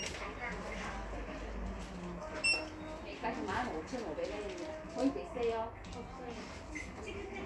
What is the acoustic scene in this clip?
crowded indoor space